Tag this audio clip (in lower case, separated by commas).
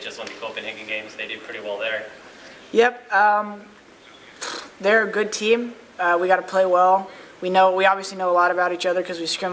speech